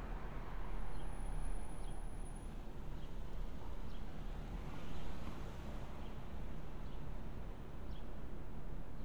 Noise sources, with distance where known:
medium-sounding engine

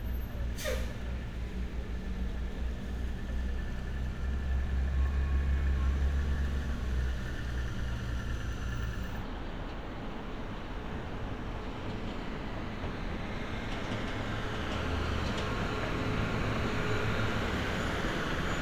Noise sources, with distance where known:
large-sounding engine

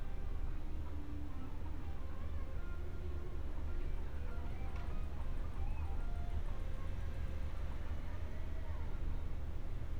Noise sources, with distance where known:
music from an unclear source, far

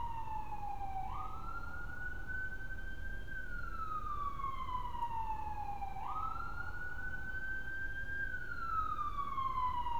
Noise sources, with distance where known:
siren

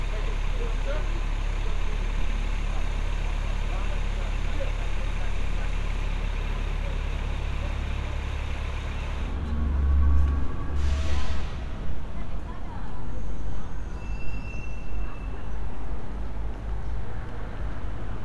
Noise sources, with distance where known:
large-sounding engine; person or small group talking

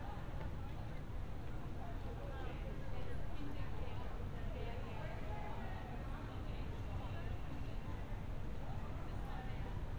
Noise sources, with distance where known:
person or small group talking, far

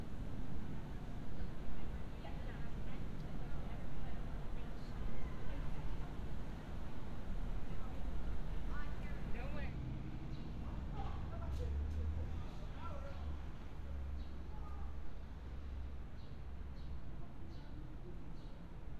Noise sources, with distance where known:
unidentified human voice

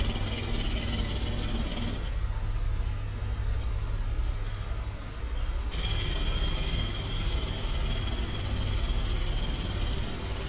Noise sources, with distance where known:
jackhammer, far

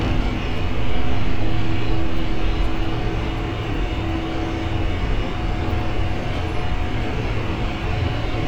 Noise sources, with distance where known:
unidentified impact machinery

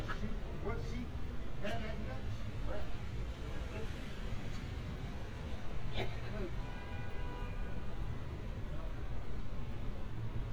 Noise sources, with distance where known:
unidentified human voice

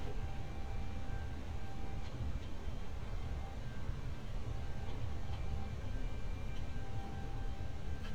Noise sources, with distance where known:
background noise

